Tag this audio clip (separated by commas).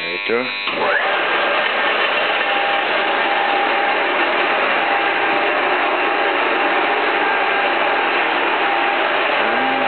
Speech